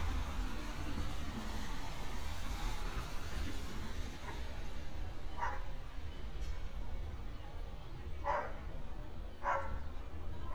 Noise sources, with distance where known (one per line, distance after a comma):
dog barking or whining, near